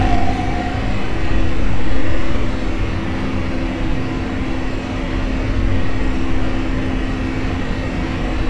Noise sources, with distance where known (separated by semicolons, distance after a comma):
unidentified impact machinery